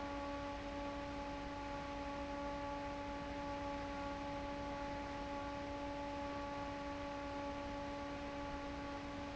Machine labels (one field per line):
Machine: fan